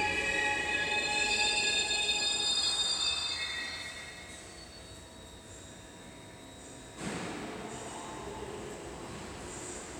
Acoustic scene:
subway station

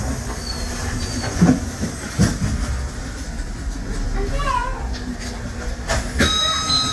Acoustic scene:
bus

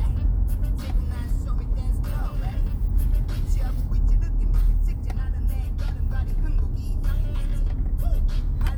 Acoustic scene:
car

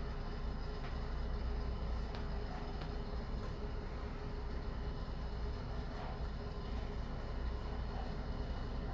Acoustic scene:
elevator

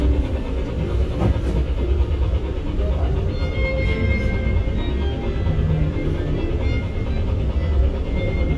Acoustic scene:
bus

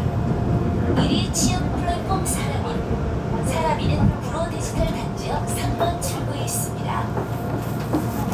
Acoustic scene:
subway station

